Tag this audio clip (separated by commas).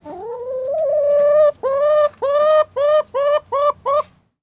Chicken, Fowl, Animal, livestock